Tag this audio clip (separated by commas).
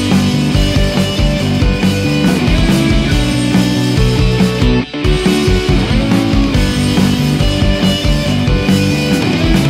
Music